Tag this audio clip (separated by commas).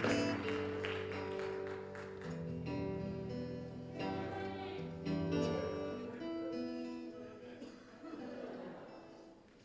Speech, Music